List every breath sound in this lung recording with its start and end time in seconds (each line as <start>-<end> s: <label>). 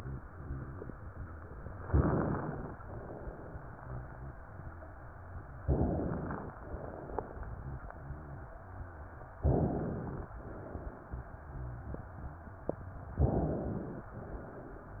1.88-2.73 s: inhalation
5.64-6.49 s: inhalation
9.47-10.32 s: inhalation
13.21-14.06 s: inhalation